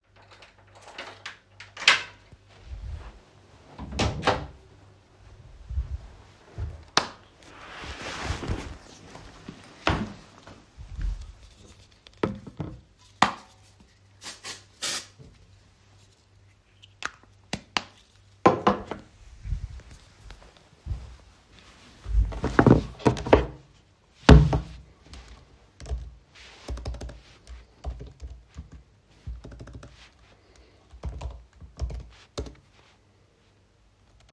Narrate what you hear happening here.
I unlocked to door opened it and turned on the light. Then I put down my backpack took the cap off a deodorant sprayed with it and put the cap back on. Then I placed my laptop on the desk and started typing.